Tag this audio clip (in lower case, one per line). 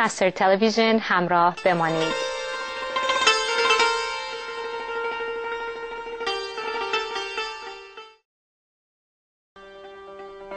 sitar